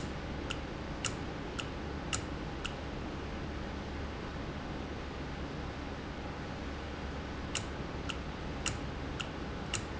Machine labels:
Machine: valve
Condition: normal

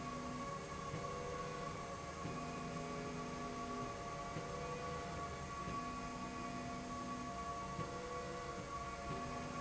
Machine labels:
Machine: slide rail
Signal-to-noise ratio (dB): 0 dB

